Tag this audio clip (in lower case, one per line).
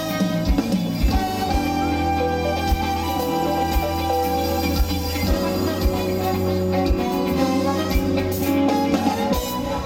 music